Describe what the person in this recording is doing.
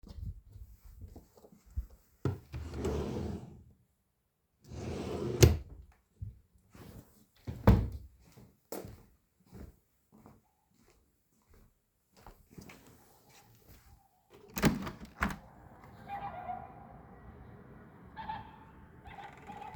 I opened the wardrobe and pulled out a drawer, then closed it again. I walked over to the window and opened it.